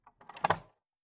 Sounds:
alarm, telephone

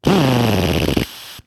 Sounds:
tools, power tool, drill

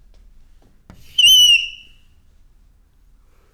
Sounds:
screech

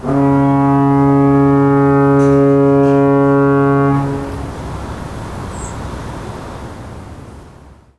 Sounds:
alarm, water, vehicle, water vehicle, ocean

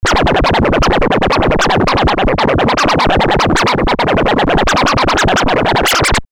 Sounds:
scratching (performance technique), music, musical instrument

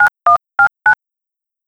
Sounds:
telephone, alarm

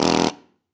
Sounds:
tools

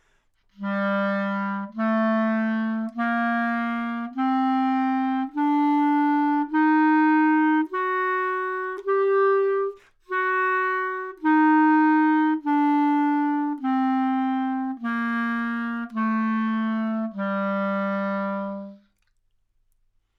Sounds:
musical instrument, woodwind instrument, music

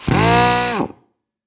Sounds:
power tool, tools, drill

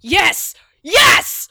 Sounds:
human voice, shout, yell

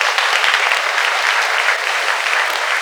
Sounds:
applause, human group actions

